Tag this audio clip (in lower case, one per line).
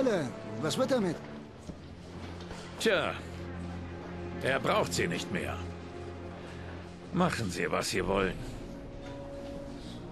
speech
music